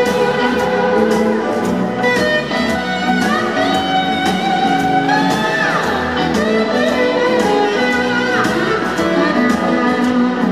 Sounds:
Music

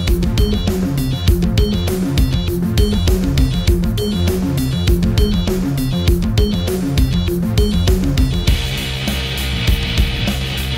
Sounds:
Music, Exciting music

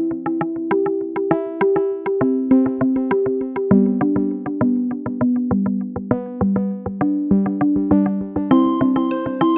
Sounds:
Music

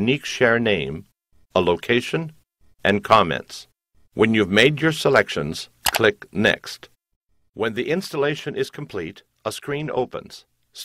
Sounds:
Speech

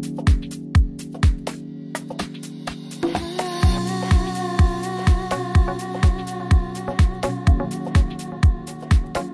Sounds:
Music

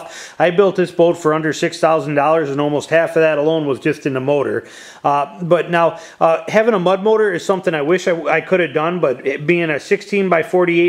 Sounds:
Speech

